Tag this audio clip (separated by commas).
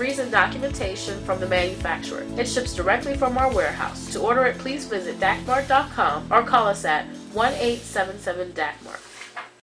Music, Speech